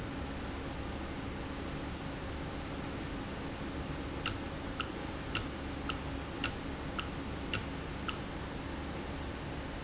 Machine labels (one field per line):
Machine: valve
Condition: normal